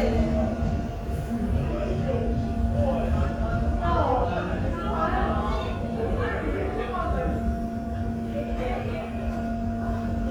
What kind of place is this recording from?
subway station